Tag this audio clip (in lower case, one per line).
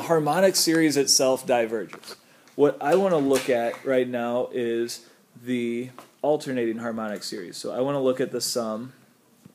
speech